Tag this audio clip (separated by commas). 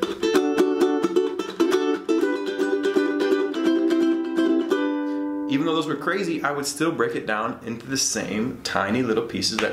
playing ukulele